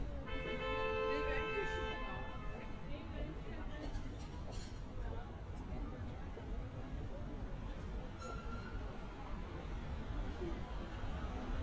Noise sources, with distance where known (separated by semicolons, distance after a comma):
medium-sounding engine, near; car horn, near; person or small group talking